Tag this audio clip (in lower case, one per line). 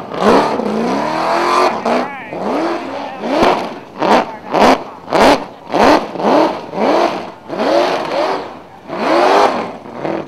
race car
speech
vehicle
car